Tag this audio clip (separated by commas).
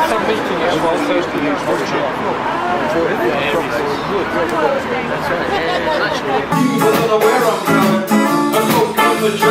Speech, Music